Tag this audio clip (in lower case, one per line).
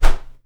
whoosh